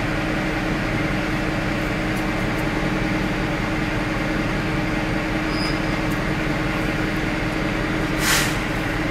A soft sustained steam sound suspended by the hiss